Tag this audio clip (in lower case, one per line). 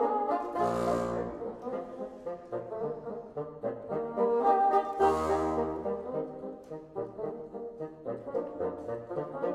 playing bassoon